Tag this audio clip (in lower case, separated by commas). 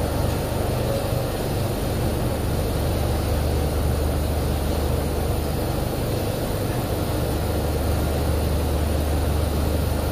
pink noise